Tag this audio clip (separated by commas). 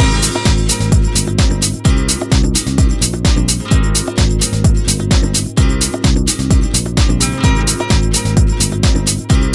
Music, Pop music, Exciting music